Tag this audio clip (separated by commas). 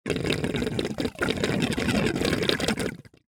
Water, Gurgling